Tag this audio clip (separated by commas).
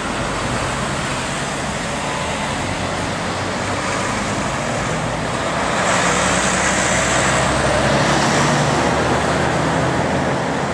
Traffic noise, Vehicle, Motor vehicle (road), Truck, Car